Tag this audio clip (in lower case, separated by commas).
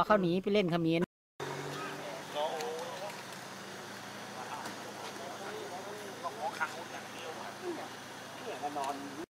speech, outside, urban or man-made